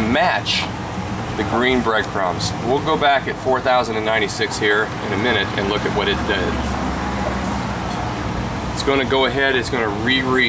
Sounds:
Speech

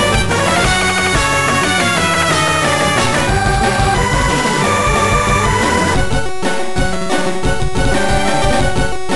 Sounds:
Music

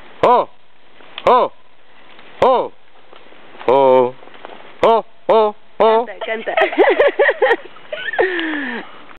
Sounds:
Speech

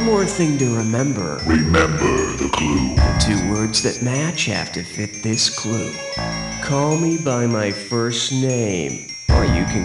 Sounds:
Soundtrack music, Music, Speech

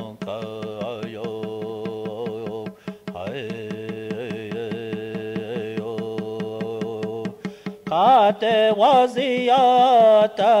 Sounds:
Music, Mantra

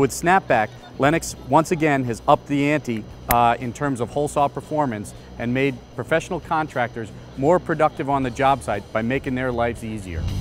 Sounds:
Speech

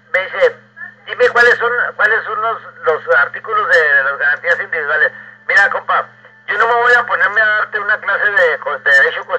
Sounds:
Speech, Radio

